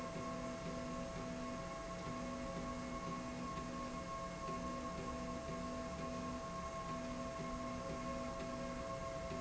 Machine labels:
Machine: slide rail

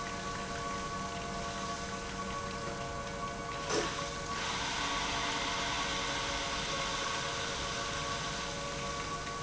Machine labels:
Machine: pump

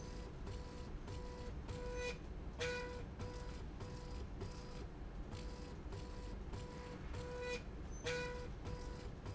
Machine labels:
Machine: slide rail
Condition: normal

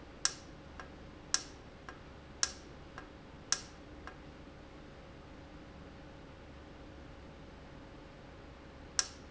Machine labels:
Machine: valve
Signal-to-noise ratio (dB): 6 dB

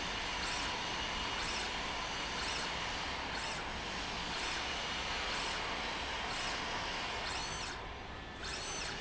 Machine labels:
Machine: slide rail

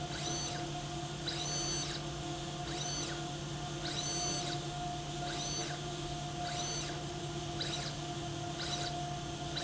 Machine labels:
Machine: slide rail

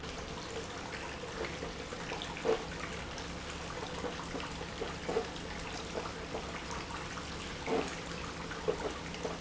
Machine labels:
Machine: pump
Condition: abnormal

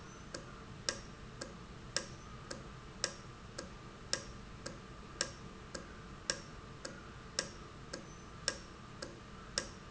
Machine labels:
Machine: valve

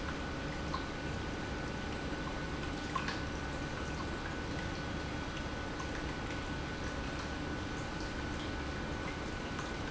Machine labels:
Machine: pump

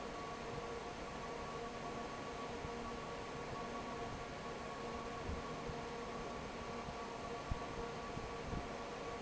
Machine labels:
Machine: fan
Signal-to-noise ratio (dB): 6 dB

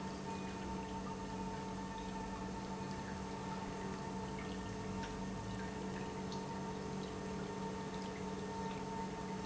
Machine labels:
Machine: pump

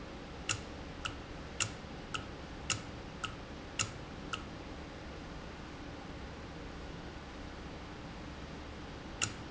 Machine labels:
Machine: valve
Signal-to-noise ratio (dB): 0 dB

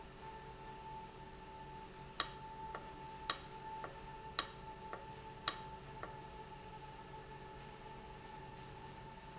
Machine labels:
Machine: valve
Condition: abnormal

